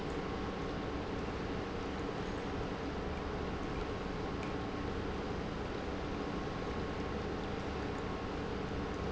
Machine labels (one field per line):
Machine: pump